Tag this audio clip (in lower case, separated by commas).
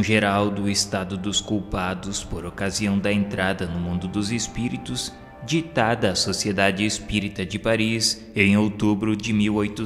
speech, music